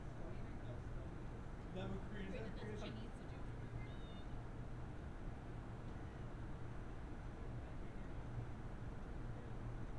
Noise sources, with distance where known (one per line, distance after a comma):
person or small group talking, near